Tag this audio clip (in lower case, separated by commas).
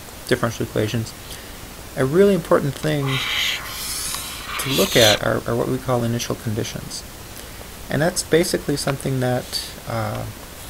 speech